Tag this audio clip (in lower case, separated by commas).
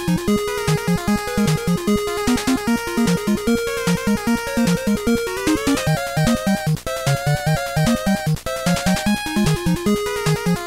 music